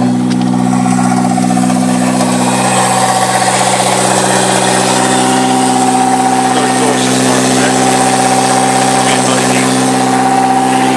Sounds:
engine
speech
medium engine (mid frequency)
vehicle
idling

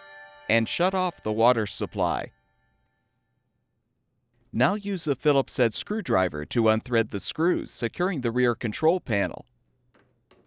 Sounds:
speech

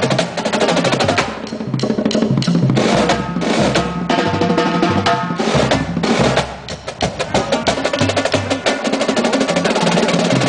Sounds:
rimshot
drum
drum roll
drum kit
percussion

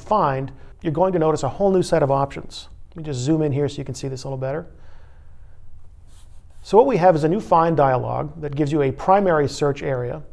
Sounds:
speech

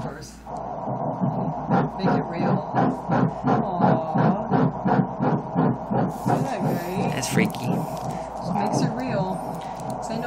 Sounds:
speech

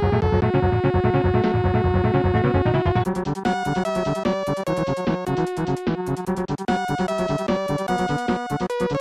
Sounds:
music
soundtrack music

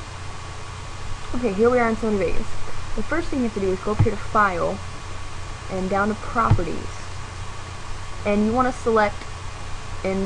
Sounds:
speech

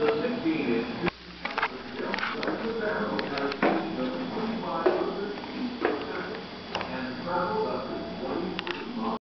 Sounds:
speech

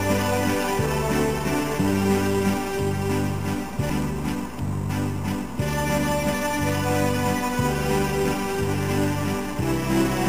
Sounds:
music

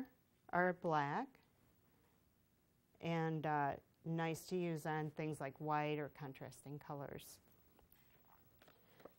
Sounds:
speech

